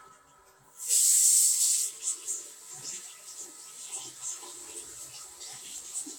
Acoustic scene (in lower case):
restroom